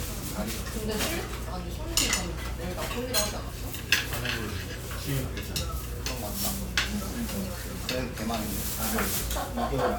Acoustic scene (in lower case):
restaurant